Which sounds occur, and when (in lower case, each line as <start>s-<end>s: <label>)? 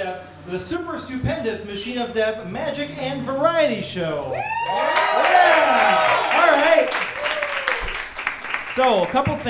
0.0s-4.5s: male speech
0.0s-9.4s: mechanisms
0.2s-0.3s: tick
4.2s-9.4s: crowd
4.2s-6.3s: shout
4.6s-9.4s: applause
6.2s-7.0s: male speech
7.1s-8.0s: shout
7.8s-8.0s: tap
8.8s-9.4s: male speech
9.2s-9.4s: tap